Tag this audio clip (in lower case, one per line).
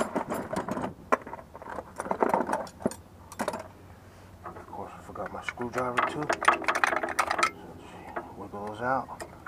outside, urban or man-made
speech